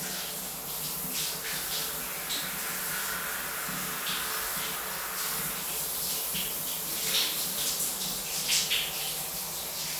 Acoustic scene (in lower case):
restroom